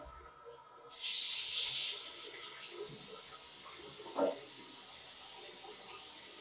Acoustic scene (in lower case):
restroom